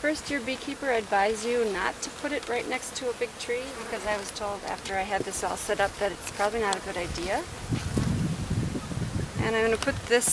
A woman speaking with white noise and light wind